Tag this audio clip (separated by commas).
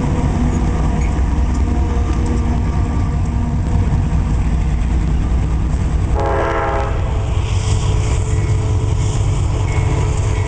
Vehicle, outside, urban or man-made, Train, Railroad car